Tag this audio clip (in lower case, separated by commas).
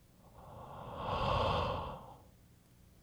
respiratory sounds, breathing